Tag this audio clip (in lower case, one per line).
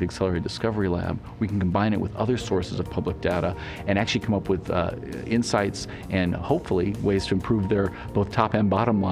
music
speech